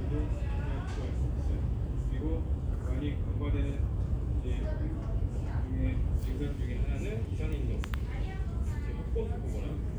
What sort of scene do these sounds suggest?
crowded indoor space